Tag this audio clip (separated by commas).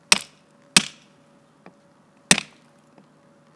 Tools